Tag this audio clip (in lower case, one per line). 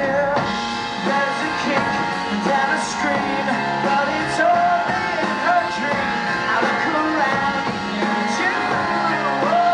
rock and roll
music
singing